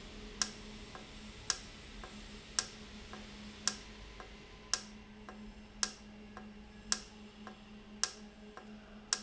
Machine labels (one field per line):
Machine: valve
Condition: normal